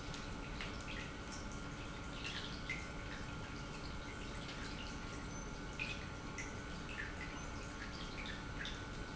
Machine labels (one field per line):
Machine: pump